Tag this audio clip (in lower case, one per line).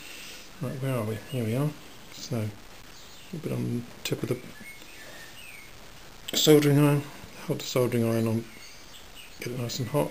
speech
inside a small room